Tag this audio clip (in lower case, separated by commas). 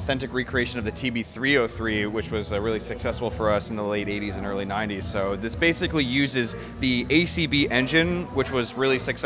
speech, music